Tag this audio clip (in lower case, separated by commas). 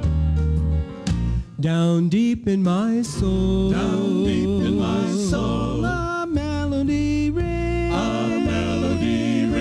music, gospel music